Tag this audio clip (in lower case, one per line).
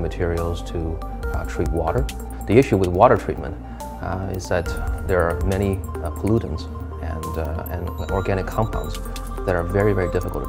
music
speech